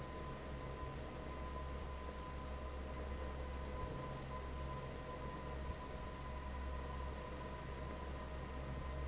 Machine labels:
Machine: fan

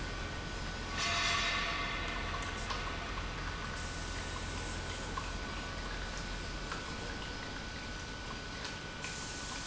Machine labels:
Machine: pump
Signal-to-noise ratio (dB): -6 dB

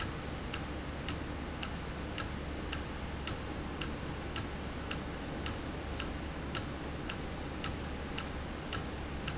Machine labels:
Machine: valve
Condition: normal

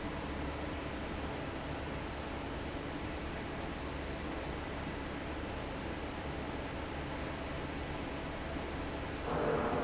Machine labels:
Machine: fan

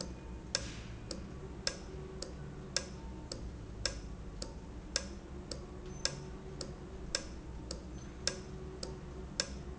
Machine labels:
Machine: valve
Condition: normal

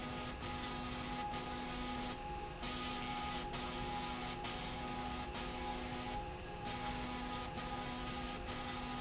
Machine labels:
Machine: slide rail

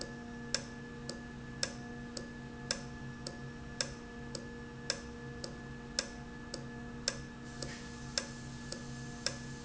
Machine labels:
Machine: valve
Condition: normal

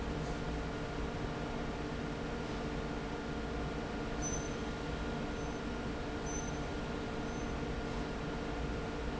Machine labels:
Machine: fan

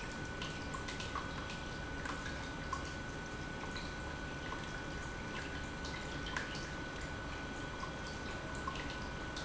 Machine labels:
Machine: pump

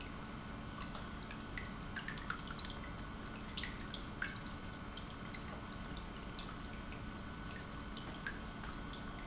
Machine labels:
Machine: pump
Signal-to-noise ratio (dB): 6 dB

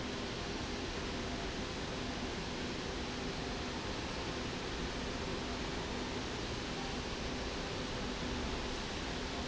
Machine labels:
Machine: slide rail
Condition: normal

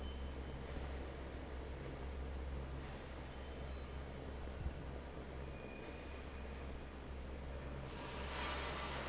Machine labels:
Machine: fan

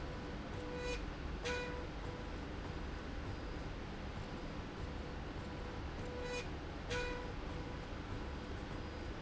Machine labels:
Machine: slide rail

